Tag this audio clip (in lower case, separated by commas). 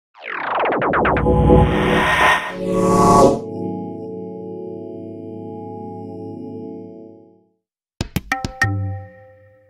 music, musical instrument